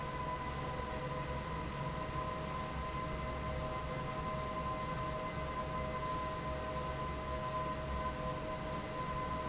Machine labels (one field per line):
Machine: fan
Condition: normal